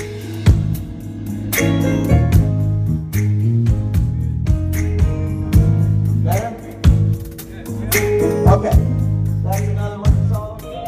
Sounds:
speech, music

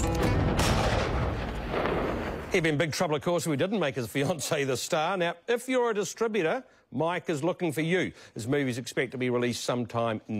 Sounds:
fireworks

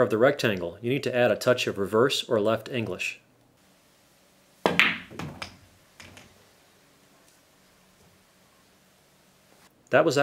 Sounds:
striking pool

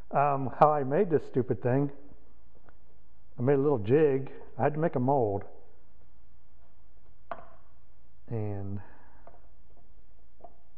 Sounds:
speech

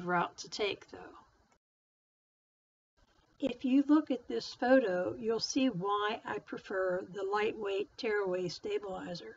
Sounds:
speech

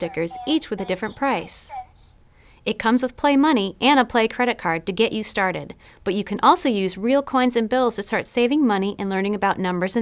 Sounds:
speech

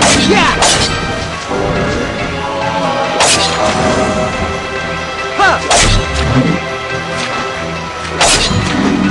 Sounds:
music

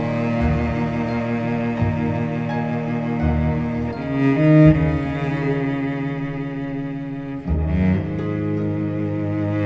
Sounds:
music

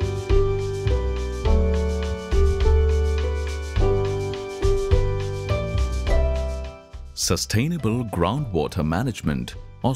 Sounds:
music, speech

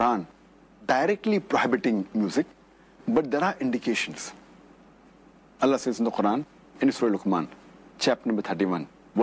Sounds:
speech

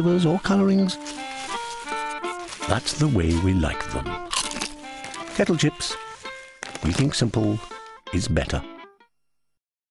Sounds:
music, speech

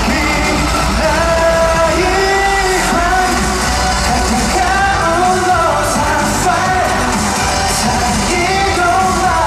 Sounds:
music, dance music

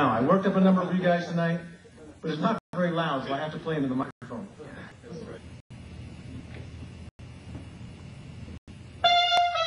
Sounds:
trumpet, music, speech, musical instrument

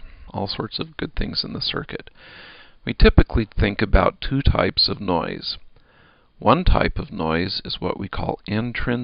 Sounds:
speech

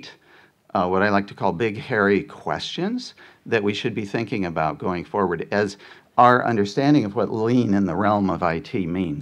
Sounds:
speech

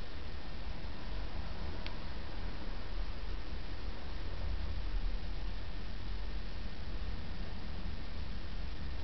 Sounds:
silence, inside a small room

